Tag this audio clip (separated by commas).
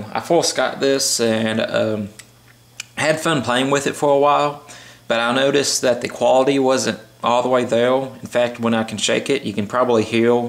Speech, inside a small room